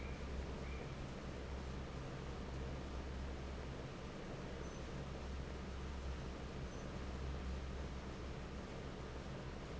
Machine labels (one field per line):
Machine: fan